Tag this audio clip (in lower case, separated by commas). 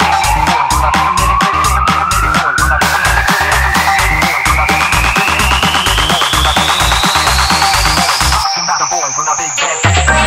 music, house music, electronic dance music